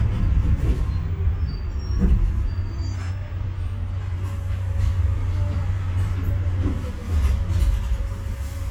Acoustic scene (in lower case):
bus